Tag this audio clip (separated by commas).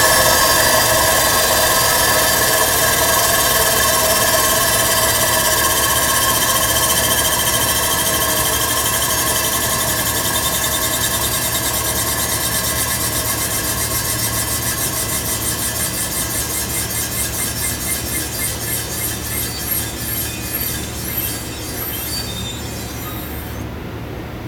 Sawing, Tools